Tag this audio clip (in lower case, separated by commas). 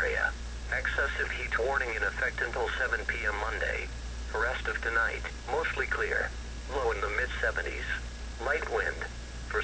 radio, speech